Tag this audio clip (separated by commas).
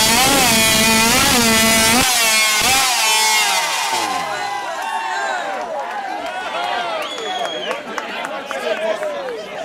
Speech